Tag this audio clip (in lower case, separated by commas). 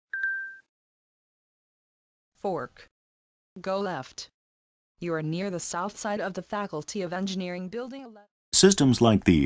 speech, outside, urban or man-made